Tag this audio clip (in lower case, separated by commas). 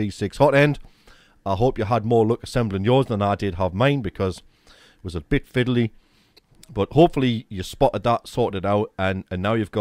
speech